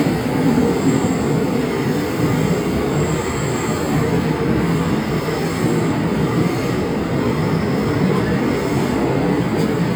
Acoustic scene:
subway train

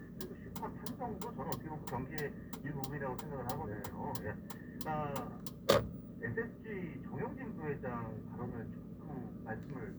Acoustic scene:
car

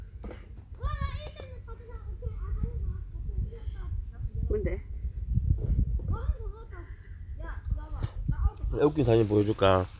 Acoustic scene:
park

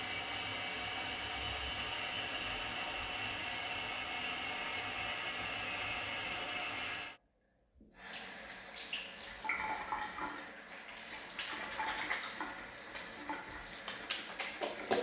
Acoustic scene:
restroom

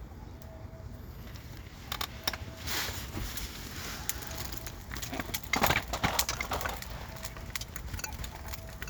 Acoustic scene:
park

